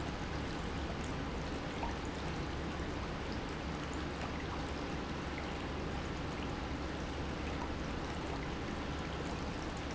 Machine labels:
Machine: pump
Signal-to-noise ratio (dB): -6 dB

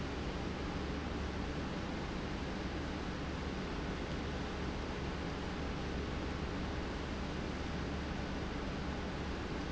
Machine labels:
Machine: pump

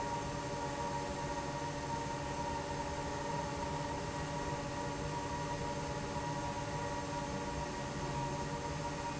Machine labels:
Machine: fan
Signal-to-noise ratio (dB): -6 dB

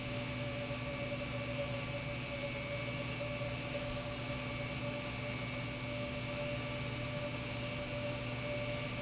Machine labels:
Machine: pump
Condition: normal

